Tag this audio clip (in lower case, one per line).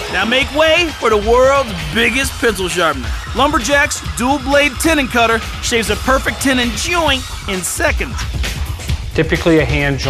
speech
music